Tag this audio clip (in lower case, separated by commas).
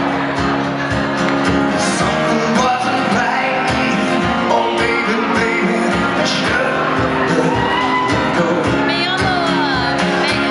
music, screaming